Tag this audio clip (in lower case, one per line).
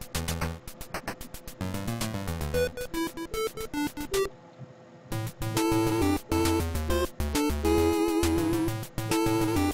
music